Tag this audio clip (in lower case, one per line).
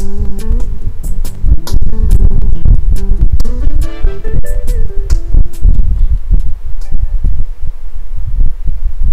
music